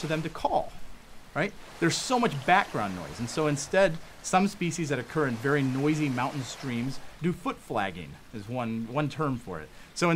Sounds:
speech

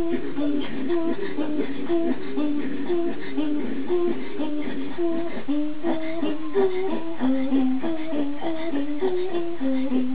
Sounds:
female singing

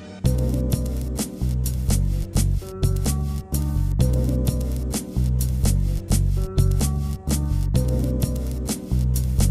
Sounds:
music

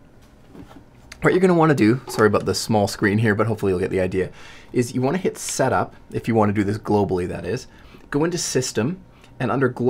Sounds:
speech

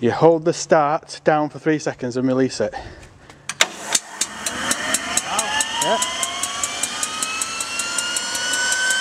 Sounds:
speech

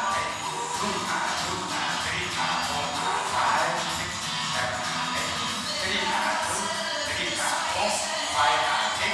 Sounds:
speech
music

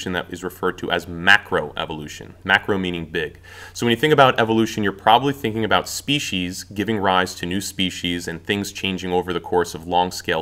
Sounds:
speech

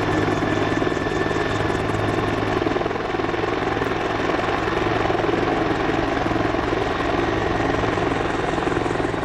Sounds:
vehicle
helicopter

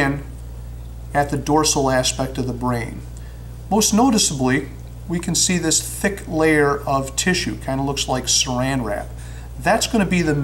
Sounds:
speech

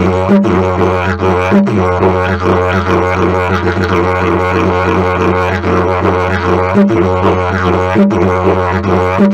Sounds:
playing didgeridoo

